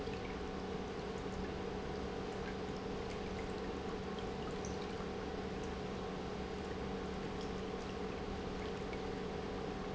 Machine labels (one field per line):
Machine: pump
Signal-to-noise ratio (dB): 0 dB